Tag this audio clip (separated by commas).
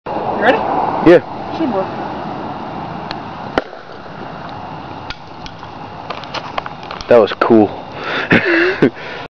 Speech